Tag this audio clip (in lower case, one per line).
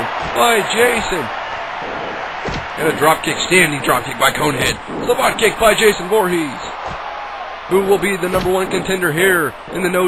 speech